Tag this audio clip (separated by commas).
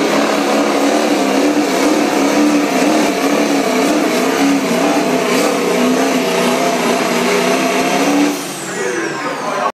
Speech, Vehicle, Air brake